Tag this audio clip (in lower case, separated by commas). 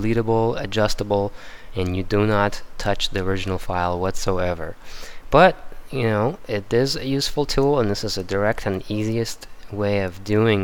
speech